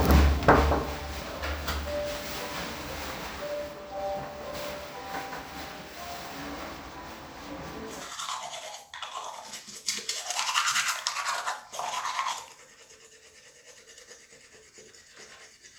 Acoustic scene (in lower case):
restroom